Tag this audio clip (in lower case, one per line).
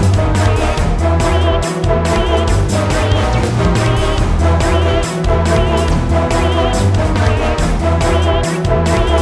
music